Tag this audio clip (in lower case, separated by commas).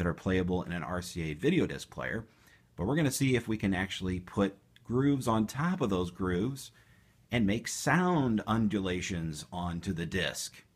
speech